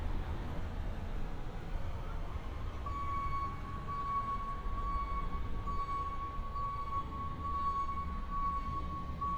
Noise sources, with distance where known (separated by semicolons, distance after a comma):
reverse beeper, near